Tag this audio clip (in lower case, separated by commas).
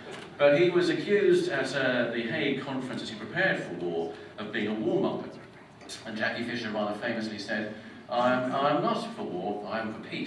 male speech, speech